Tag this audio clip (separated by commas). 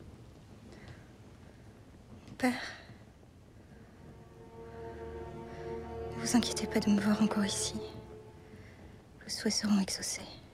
Music, Speech